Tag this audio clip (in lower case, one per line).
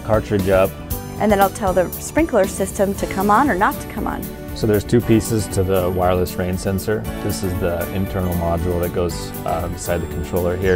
speech
music